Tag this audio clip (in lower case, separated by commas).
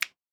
finger snapping, hands